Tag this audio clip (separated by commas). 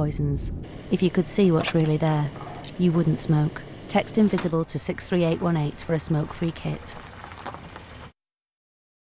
Speech